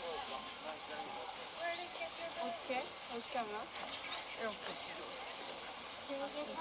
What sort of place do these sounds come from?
park